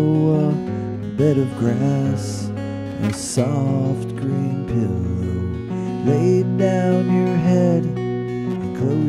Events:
0.0s-0.6s: male singing
0.0s-9.0s: music
1.2s-2.5s: male singing
3.0s-5.5s: male singing
5.7s-5.9s: breathing
6.0s-7.8s: male singing

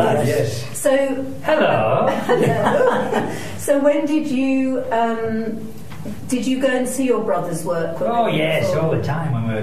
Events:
0.0s-0.7s: man speaking
0.0s-9.6s: background noise
0.0s-9.6s: conversation
0.8s-1.4s: female speech
1.4s-2.2s: man speaking
2.2s-3.2s: giggle
3.2s-3.6s: breathing
3.7s-5.5s: female speech
5.8s-6.1s: generic impact sounds
6.2s-8.2s: female speech
8.0s-9.6s: man speaking

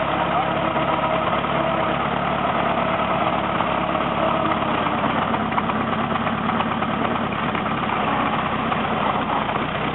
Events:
0.0s-9.9s: background noise
0.0s-9.9s: truck

